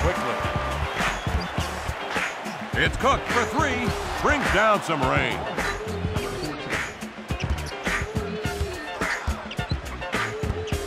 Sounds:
music
speech

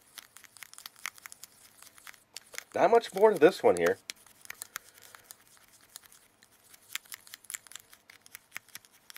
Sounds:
speech
inside a small room

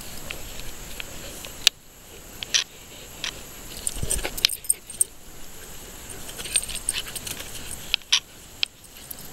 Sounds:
pets

